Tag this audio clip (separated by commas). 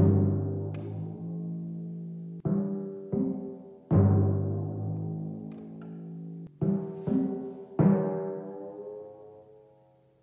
playing tympani